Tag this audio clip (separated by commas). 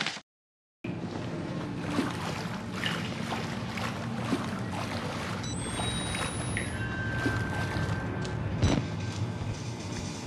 inside a large room or hall